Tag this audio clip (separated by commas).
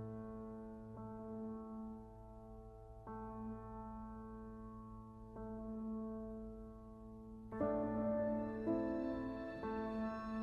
Music